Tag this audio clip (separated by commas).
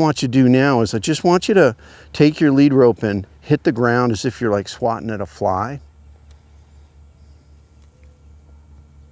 Speech